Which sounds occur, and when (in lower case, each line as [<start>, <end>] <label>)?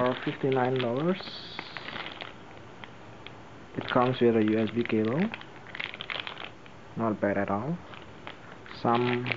[0.00, 1.16] male speech
[0.00, 1.29] generic impact sounds
[0.00, 9.35] mechanisms
[1.55, 2.32] generic impact sounds
[2.75, 2.87] generic impact sounds
[3.12, 3.34] generic impact sounds
[3.76, 5.35] generic impact sounds
[3.88, 5.28] male speech
[5.51, 6.46] generic impact sounds
[6.94, 7.72] male speech
[7.84, 8.02] generic impact sounds
[8.23, 8.42] generic impact sounds
[8.79, 9.33] male speech
[8.84, 9.35] generic impact sounds